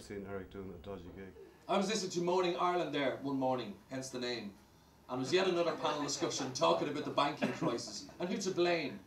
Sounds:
Chuckle, Speech

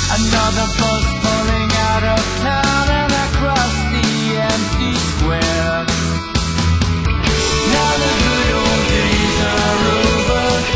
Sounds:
Music

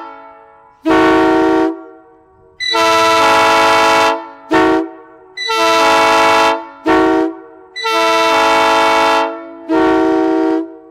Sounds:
Train horn, honking

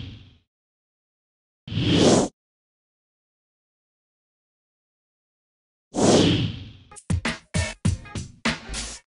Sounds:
Music

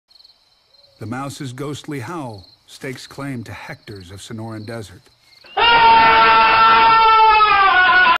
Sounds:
Speech

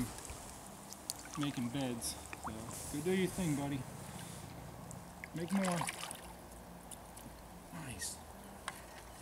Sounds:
Wind

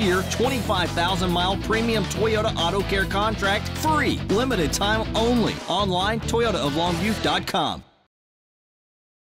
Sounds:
Speech, Television

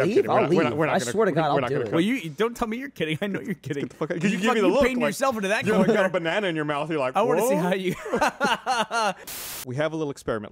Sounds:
Speech

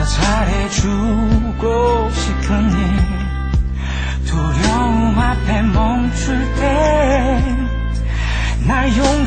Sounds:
Male singing, Music

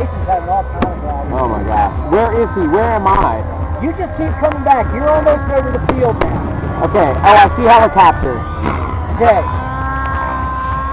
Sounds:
Fireworks

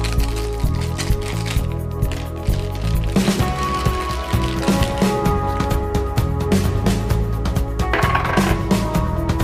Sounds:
Music

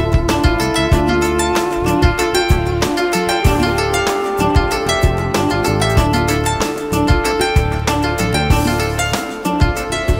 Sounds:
New-age music, Music

